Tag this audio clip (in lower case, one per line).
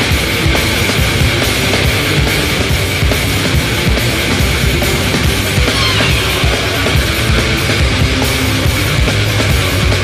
music